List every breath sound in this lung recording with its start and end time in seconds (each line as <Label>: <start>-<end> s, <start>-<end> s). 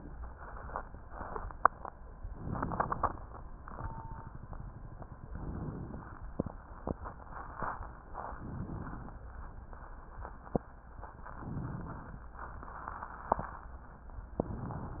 Inhalation: 2.23-3.38 s, 5.25-6.18 s, 8.37-9.23 s, 11.24-12.28 s
Crackles: 2.23-3.38 s, 11.24-12.28 s